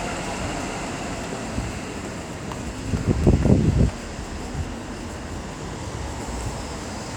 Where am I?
on a street